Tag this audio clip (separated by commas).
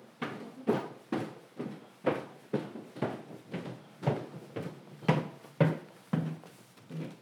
Walk